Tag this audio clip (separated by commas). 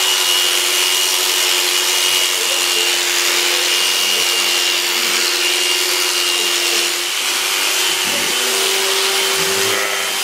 Sheep, Bleat